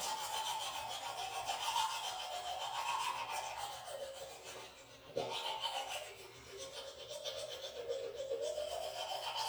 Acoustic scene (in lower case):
restroom